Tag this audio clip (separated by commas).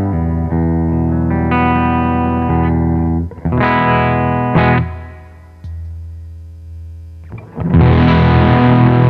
Effects unit, Guitar, Music, Plucked string instrument, inside a small room, Musical instrument